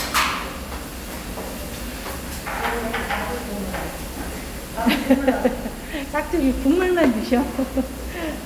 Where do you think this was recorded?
in a restaurant